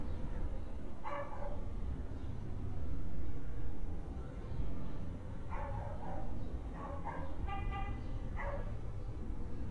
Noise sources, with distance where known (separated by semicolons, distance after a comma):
dog barking or whining, far